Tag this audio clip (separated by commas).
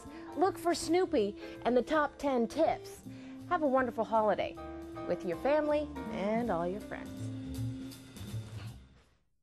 Speech, Music